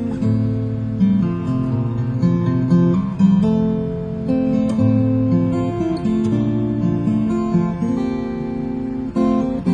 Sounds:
musical instrument
music
guitar
plucked string instrument
strum
acoustic guitar

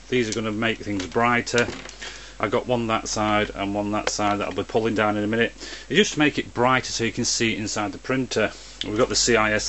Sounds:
speech

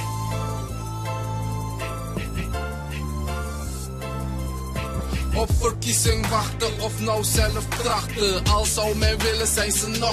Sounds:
music

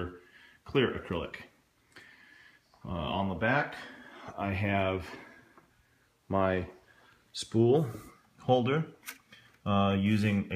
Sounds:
speech

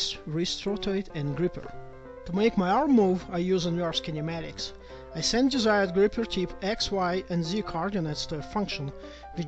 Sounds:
music
speech

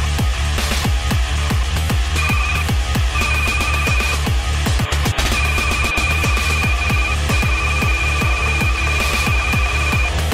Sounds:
music

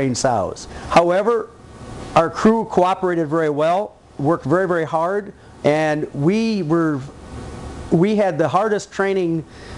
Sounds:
speech

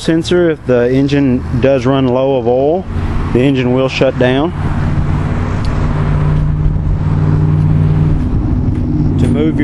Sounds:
speech

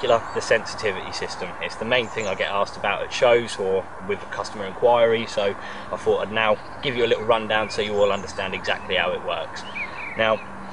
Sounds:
speech

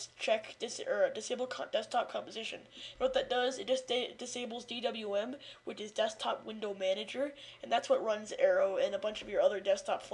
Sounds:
speech

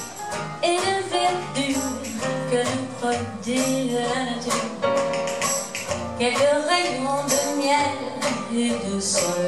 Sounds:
music

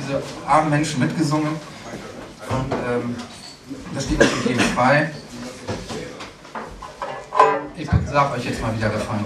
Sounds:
speech

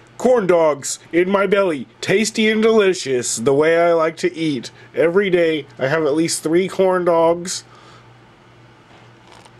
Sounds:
speech

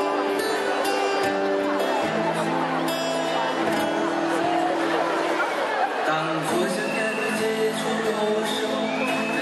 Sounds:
speech
music
male singing

